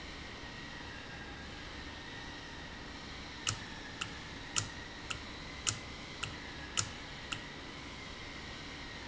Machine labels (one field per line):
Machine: valve